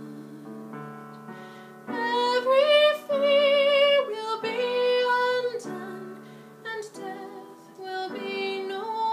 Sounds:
singing

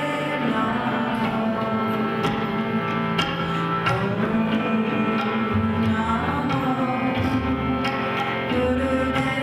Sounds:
mantra, music

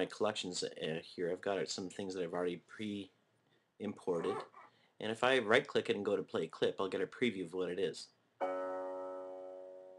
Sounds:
speech, music

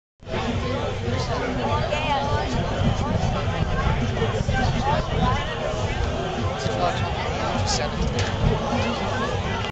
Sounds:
speech

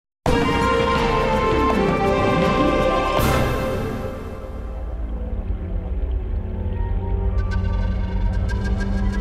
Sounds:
music

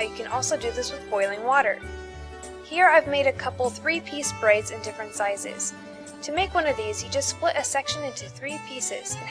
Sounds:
music, speech

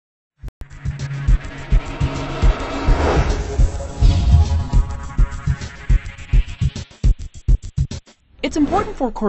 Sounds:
music, speech

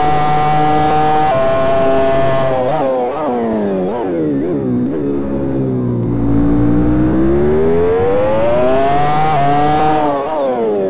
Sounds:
vehicle, car, motor vehicle (road)

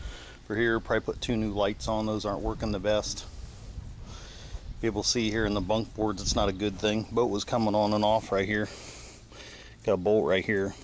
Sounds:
speech

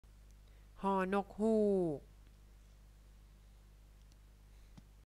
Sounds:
speech

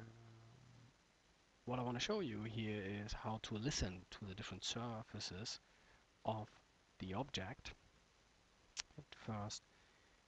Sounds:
speech

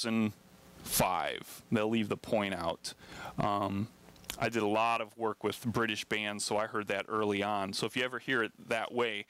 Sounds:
speech

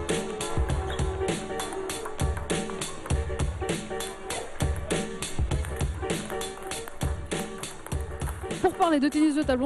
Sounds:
music, speech

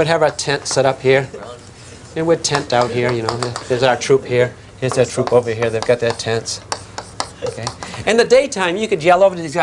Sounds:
speech

